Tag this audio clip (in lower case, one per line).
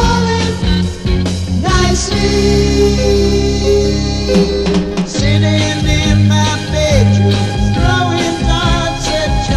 music